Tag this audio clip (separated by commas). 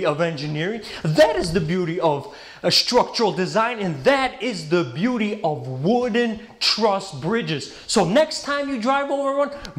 Speech